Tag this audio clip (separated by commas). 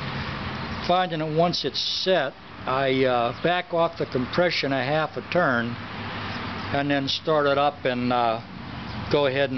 Speech